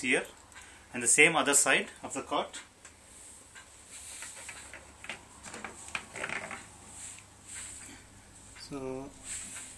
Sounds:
speech

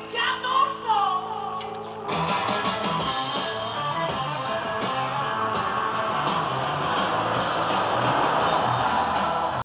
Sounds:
music

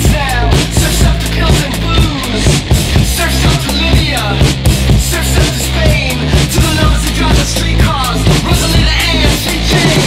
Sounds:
music, pop music

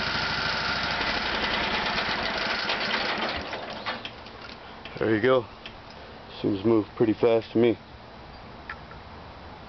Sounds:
speech, vehicle

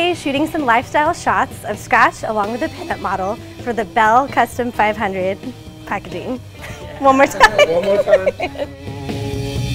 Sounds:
music, speech

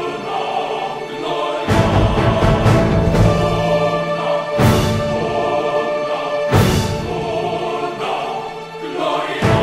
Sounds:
music

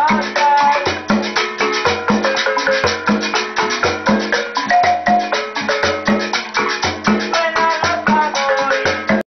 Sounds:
independent music, music

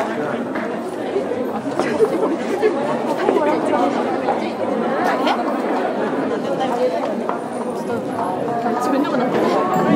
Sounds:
inside a large room or hall, chatter

